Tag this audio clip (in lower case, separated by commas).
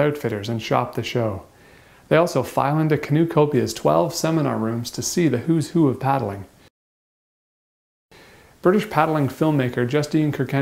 speech, inside a small room